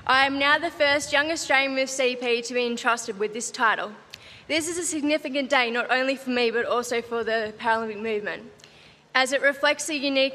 A woman is giving a speech